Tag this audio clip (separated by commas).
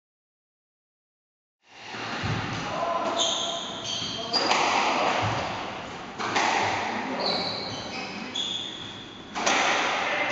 playing squash